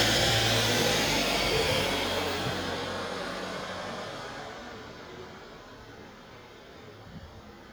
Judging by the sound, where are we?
in a residential area